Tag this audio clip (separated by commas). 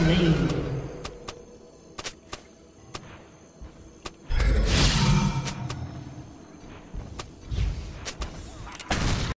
Speech